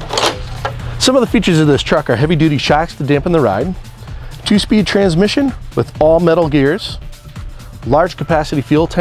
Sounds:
music, speech

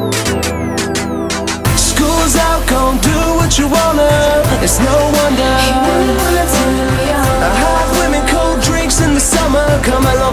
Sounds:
music

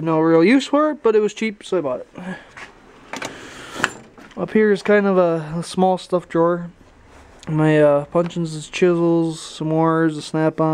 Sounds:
speech

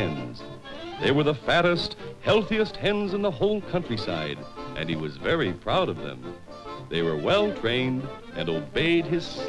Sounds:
music, speech

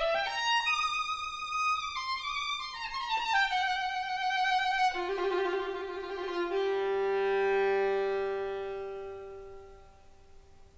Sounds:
musical instrument, music, violin

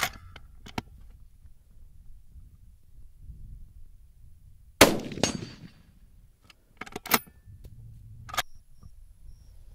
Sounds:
outside, rural or natural

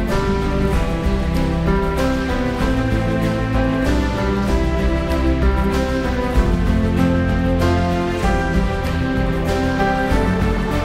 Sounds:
theme music, music

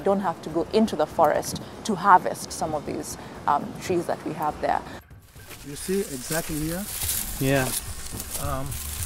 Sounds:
speech, outside, rural or natural, music

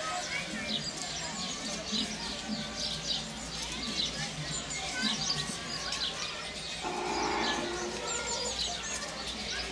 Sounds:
barn swallow calling

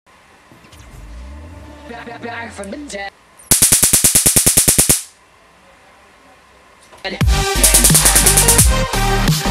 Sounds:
music, inside a small room

